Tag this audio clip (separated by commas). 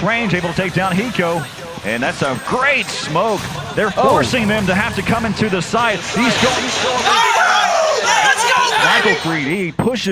Speech